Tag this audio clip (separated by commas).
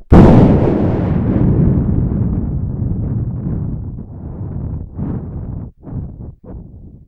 Thunderstorm, Thunder